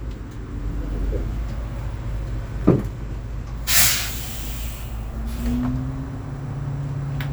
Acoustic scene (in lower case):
bus